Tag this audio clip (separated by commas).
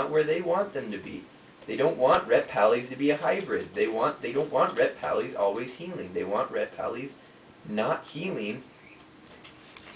Speech